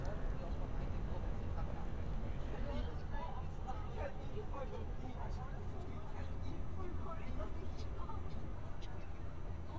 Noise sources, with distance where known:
person or small group talking, near

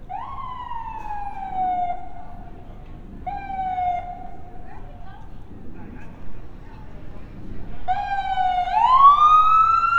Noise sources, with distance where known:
siren, near
person or small group talking, far

